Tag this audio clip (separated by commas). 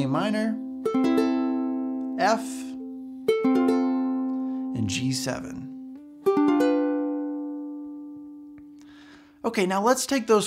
playing ukulele